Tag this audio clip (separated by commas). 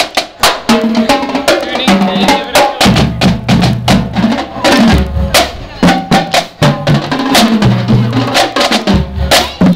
Speech, Music